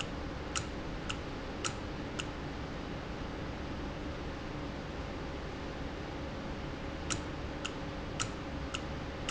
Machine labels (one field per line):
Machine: valve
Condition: normal